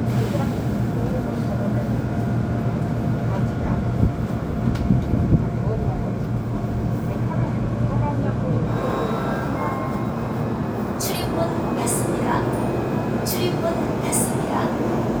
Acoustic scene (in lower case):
subway station